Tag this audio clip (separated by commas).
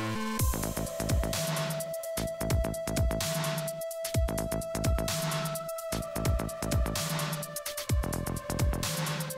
Music